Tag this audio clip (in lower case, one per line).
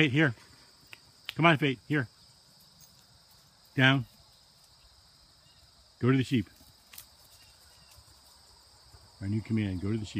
speech
outside, rural or natural
environmental noise